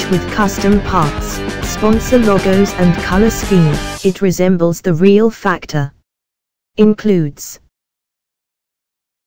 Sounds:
Speech, Music

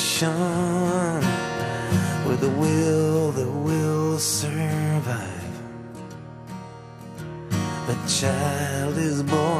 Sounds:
Music

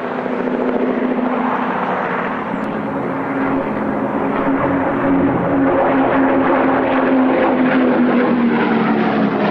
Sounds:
airplane flyby

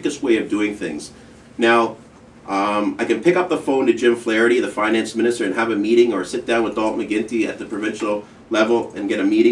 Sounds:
Speech

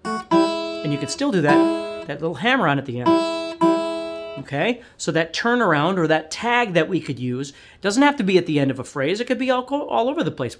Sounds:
Music, Acoustic guitar, Speech, Guitar, Musical instrument, Plucked string instrument, Strum

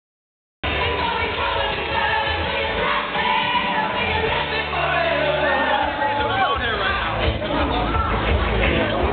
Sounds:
Music, Speech, inside a large room or hall

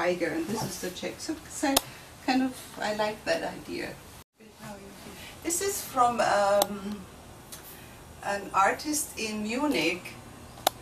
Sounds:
Speech, inside a small room

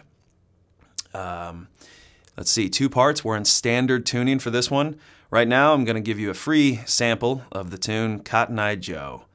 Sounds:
Speech

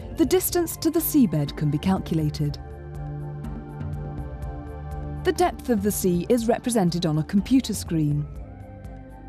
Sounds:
Speech, Music

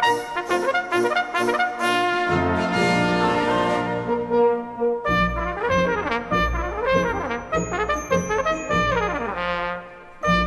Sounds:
playing cornet

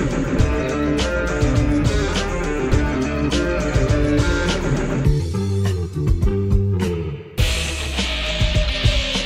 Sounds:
Strum, Bass guitar, Musical instrument, Guitar, Plucked string instrument, Music

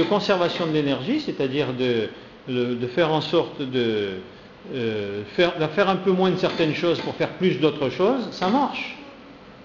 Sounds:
Speech

